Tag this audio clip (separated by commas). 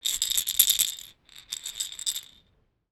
Rattle